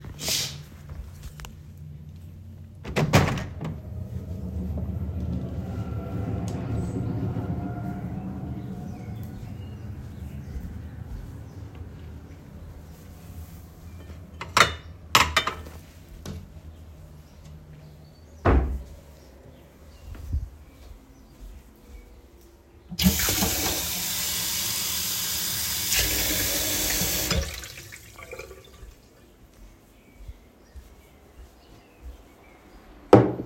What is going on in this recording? I slid open the curtain and opened the window, letting in the sounds of a passing tram and birds chirping outside. I grabbed a cup from my wardrobe and closed it, then rinsed and filled it with water. I placed the cup on a table.